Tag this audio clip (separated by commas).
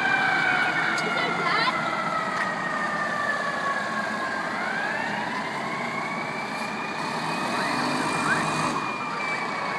Accelerating, Speech, Vehicle